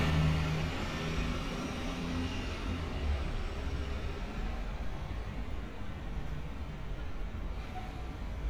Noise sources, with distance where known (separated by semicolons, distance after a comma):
engine of unclear size, far